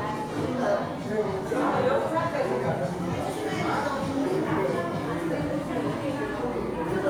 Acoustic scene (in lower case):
crowded indoor space